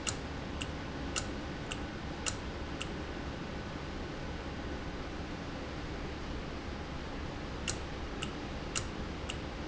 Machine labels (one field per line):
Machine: valve